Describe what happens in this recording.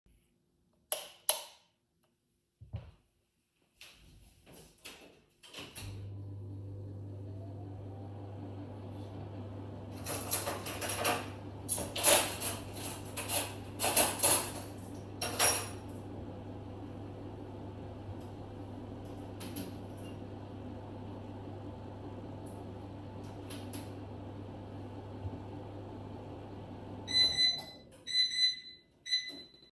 I flipped the light switch twice, then turned on the microwave. While it was warming up, I rummaged through my cutlery to find a spoon. Then I pressed some buttons so it would finish warming up my food faster and in the end the microwave timer went off.